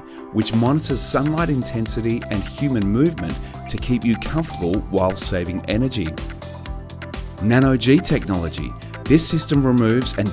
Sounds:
speech, music

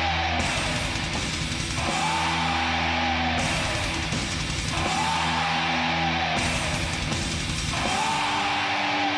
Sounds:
heavy metal, music

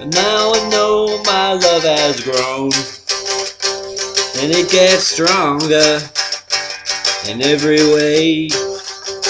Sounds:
music, plucked string instrument, acoustic guitar, guitar, musical instrument

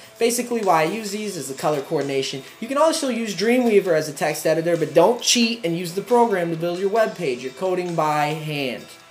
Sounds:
music, speech

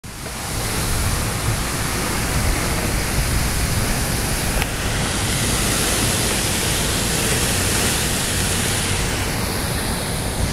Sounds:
outside, urban or man-made

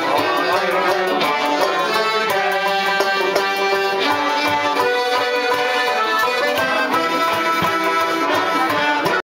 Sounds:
music

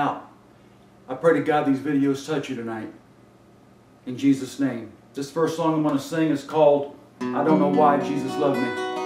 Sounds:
music, speech

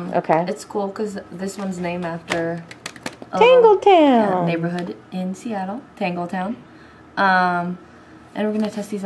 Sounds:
speech

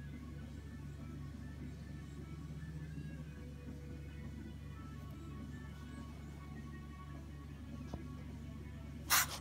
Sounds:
snake, hiss

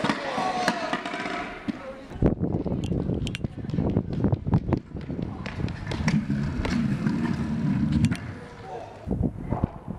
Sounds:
skateboarding

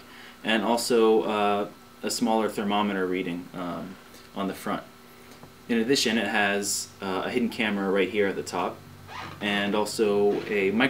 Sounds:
speech

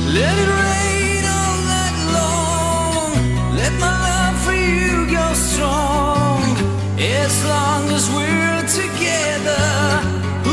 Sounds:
music

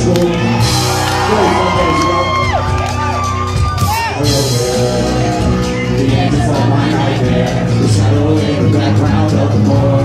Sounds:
drum, music

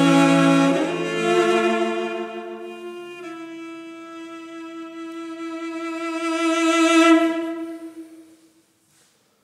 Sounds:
music, musical instrument, bowed string instrument, cello

